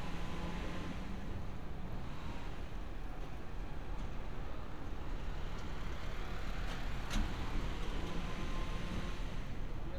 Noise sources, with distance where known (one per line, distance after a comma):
engine of unclear size